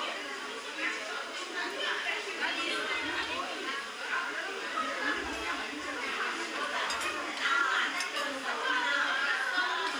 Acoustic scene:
restaurant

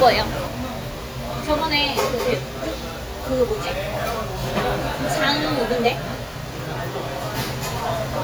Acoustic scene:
restaurant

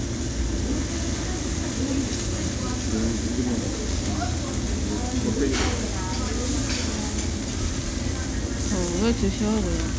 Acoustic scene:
restaurant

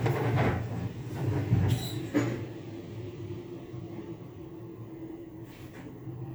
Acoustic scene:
elevator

